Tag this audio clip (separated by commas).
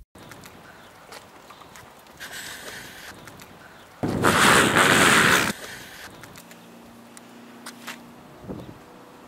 people nose blowing